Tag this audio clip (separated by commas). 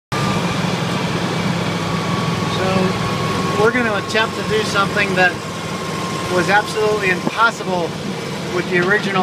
Speech, Vehicle, Car